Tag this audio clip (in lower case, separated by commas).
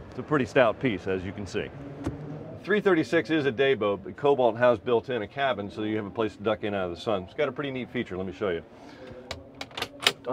speech